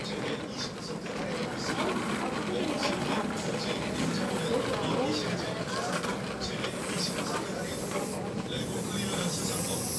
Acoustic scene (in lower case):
crowded indoor space